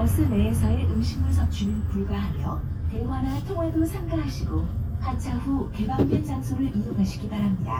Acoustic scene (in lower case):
bus